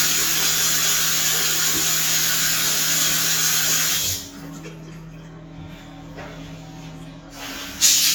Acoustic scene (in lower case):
restroom